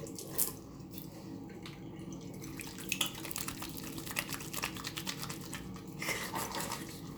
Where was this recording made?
in a restroom